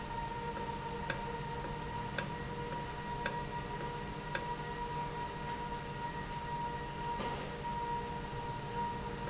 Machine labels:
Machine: valve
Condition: normal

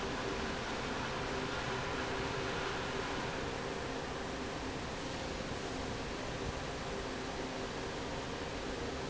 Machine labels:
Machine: fan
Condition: normal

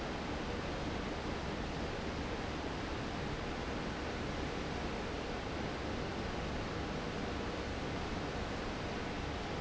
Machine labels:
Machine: fan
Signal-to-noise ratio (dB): -6 dB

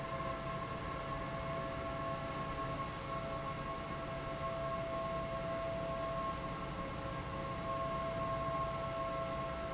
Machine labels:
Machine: fan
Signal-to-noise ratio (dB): -6 dB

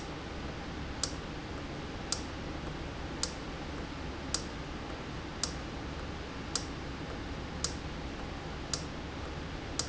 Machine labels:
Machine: valve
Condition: normal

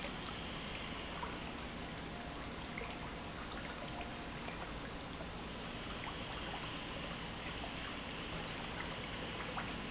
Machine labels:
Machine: pump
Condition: normal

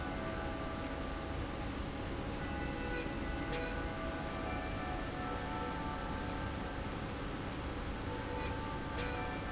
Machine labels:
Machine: slide rail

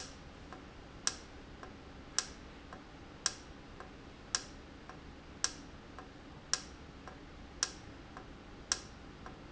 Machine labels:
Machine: valve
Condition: normal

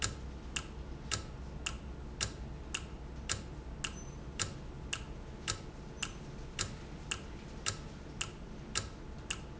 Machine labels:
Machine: valve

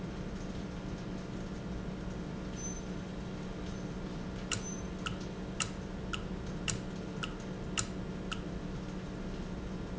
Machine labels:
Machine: valve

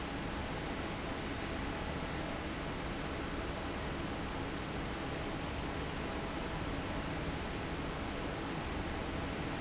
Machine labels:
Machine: fan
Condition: normal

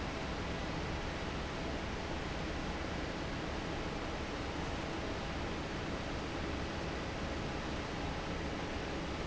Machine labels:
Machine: fan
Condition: normal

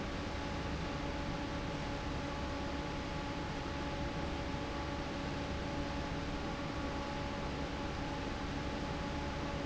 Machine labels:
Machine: fan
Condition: normal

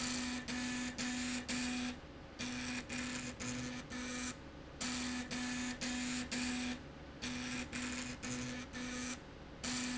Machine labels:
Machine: slide rail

